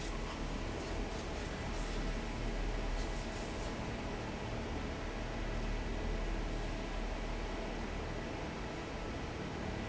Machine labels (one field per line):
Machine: fan